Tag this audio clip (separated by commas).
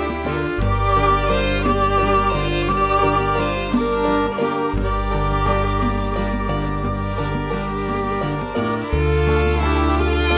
Music